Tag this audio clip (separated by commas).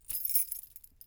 home sounds, Keys jangling